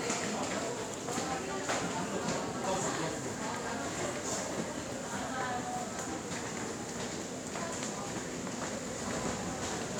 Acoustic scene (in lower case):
subway station